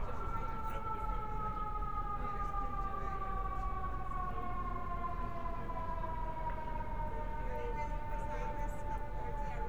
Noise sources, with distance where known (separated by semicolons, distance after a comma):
siren, near